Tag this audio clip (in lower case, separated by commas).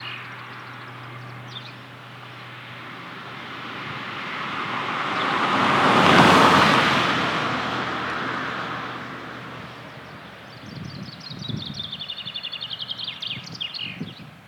car passing by, motor vehicle (road), traffic noise, vehicle, car